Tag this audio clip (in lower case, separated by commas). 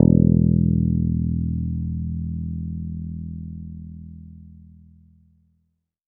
music, plucked string instrument, musical instrument, guitar, bass guitar